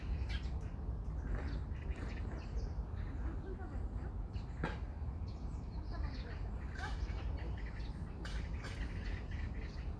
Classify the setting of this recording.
park